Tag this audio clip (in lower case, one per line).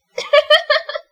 laughter
human voice